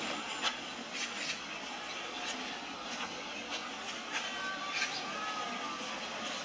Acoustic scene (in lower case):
park